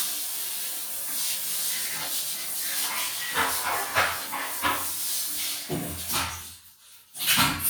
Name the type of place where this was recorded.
restroom